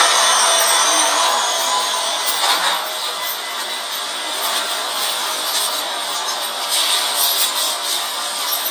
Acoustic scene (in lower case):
subway train